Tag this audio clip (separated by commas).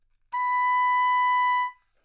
Music, Musical instrument, woodwind instrument